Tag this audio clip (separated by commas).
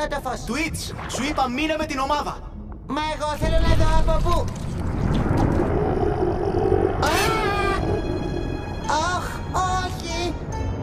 Speech, Music